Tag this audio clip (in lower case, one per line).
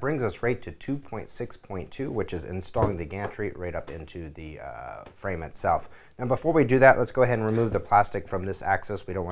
speech